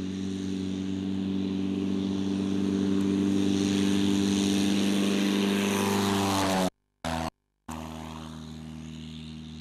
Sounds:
Vehicle, Aircraft

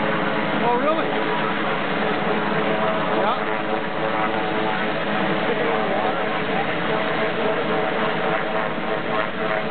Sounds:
Vehicle, Speech, Helicopter, Aircraft

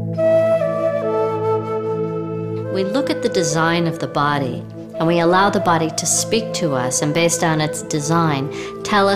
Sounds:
Speech, Music

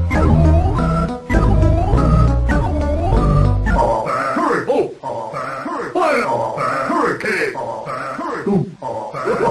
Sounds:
Music, Video game music

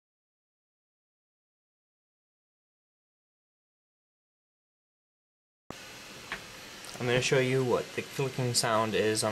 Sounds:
Speech

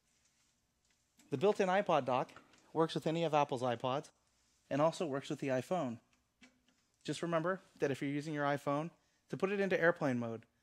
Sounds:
Speech

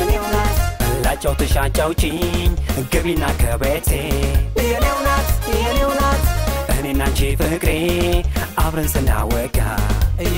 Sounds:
Dance music, Music, Rhythm and blues, Middle Eastern music

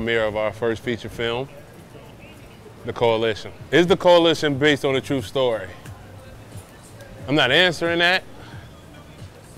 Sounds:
Speech, Music

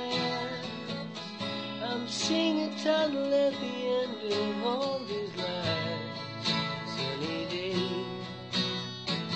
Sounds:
Music

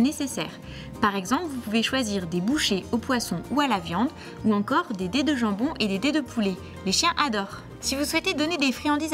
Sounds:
Music, Speech

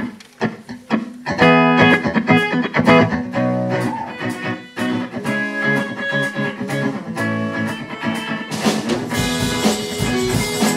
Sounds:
Funk, Music

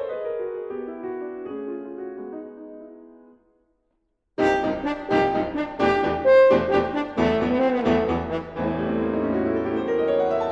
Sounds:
Piano, Musical instrument, French horn, Music

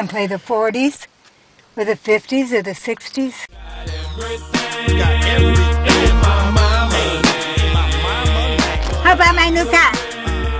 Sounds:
Speech, Music

